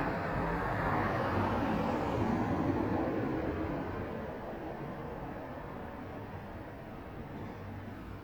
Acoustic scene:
residential area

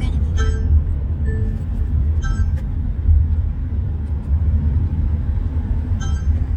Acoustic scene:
car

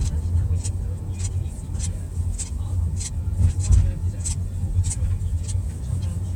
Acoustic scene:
car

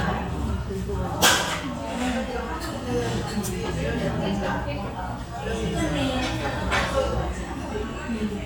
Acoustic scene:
restaurant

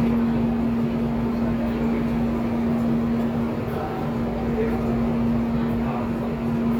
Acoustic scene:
subway station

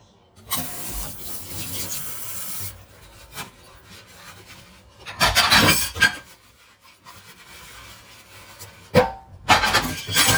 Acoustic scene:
kitchen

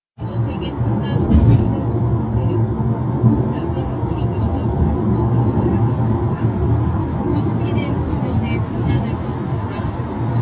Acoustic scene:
car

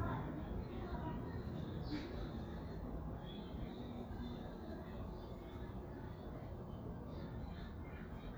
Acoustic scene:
residential area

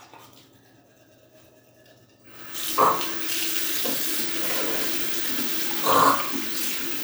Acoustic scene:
restroom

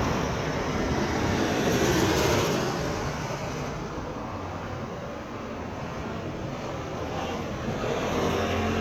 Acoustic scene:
street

